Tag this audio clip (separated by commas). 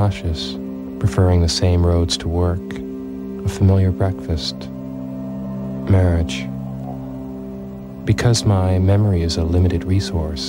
Speech, Music